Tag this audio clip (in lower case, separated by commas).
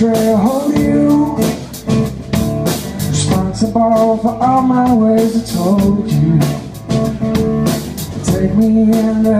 music, house music, exciting music